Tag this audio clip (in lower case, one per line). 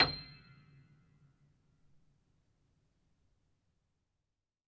keyboard (musical)
music
piano
musical instrument